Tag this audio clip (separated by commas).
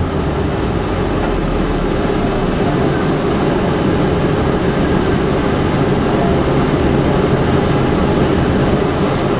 Music, Vehicle